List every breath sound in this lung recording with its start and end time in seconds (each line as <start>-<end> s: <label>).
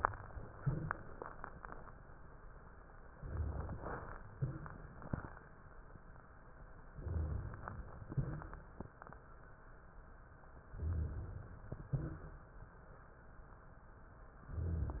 0.57-1.85 s: exhalation
0.57-1.85 s: crackles
3.12-4.19 s: inhalation
4.35-5.72 s: exhalation
4.35-5.72 s: crackles
6.97-8.06 s: inhalation
8.06-9.19 s: exhalation
8.06-9.19 s: crackles
10.76-11.69 s: inhalation
11.73-12.54 s: exhalation